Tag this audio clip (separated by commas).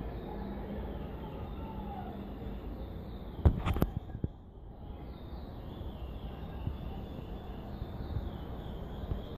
Animal